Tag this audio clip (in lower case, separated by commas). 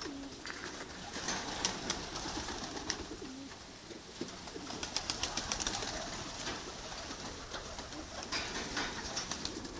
dove, inside a small room, bird